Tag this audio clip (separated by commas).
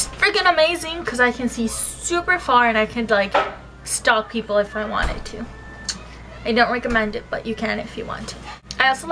Speech, Music